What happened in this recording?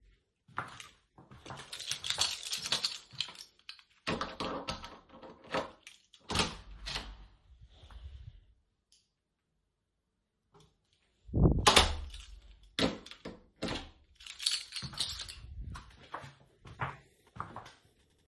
The phone was carried on the person throughout the recording. The person walked towards a door while jingling a keychain. A hard locking sound was heard as the door was unlocked without key insertion being audible. The door was opened accompanied by light breathing then closed again followed by the same hard locking sound. The keychain jingled once more as the person walked away.